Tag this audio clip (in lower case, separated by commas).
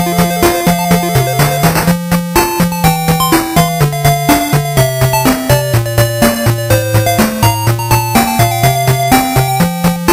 video game music, music